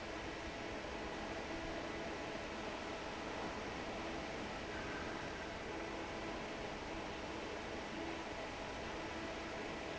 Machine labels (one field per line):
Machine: fan